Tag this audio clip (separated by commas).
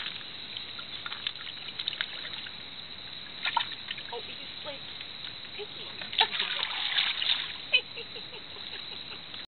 Speech